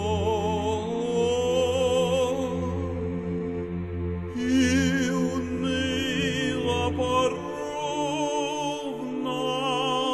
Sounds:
music

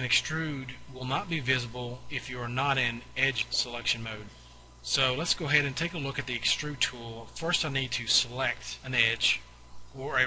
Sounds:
speech

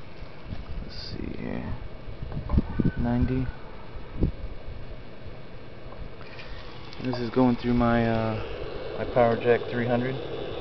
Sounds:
speech

